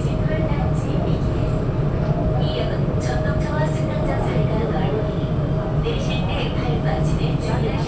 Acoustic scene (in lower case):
subway train